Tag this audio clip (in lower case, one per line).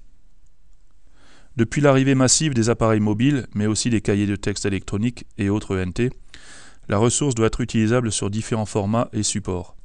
speech